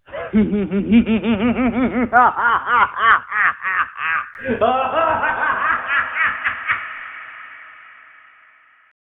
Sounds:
human voice, laughter

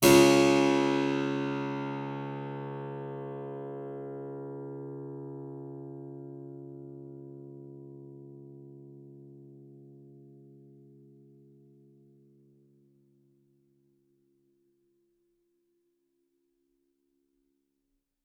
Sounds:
keyboard (musical), music, musical instrument

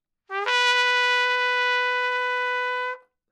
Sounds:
brass instrument, trumpet, musical instrument, music

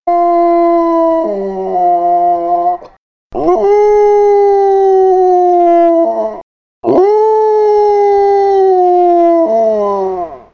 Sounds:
dog, animal, domestic animals

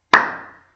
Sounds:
clapping, hands

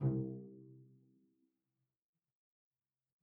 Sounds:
bowed string instrument, musical instrument, music

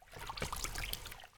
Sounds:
water, splash, liquid

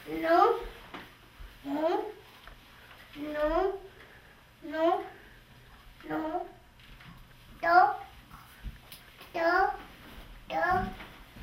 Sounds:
speech, kid speaking, human voice

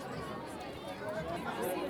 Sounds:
crowd, human group actions

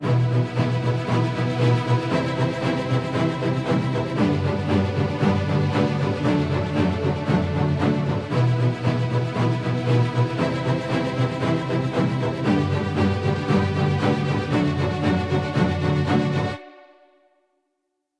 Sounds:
music, musical instrument

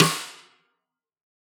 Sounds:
music, snare drum, percussion, drum, musical instrument

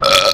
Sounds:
burping

